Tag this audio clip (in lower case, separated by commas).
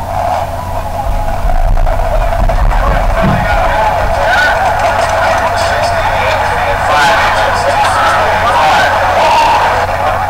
speech, vehicle, car